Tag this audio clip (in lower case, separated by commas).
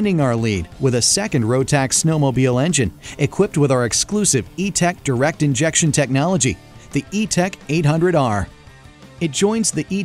speech, music